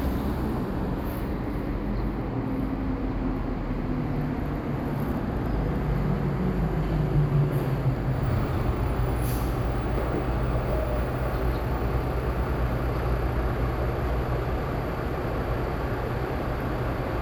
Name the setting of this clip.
street